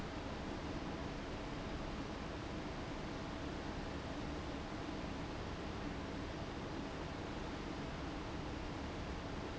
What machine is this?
fan